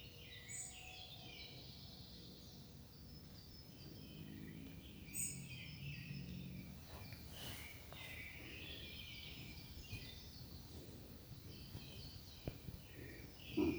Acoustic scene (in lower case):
park